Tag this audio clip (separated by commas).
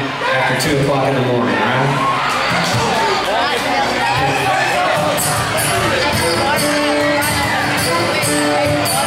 Speech, Music